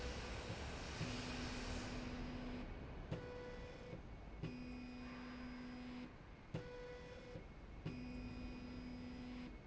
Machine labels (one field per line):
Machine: slide rail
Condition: normal